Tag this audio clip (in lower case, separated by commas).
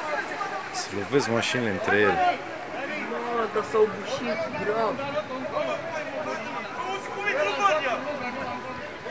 speech